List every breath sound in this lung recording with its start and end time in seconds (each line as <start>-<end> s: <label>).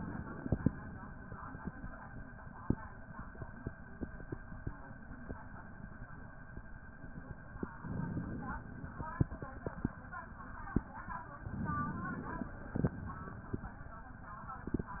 7.74-8.66 s: inhalation
11.48-12.61 s: inhalation
12.67-13.64 s: exhalation